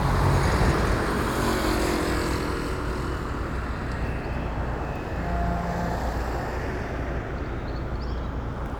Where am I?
in a residential area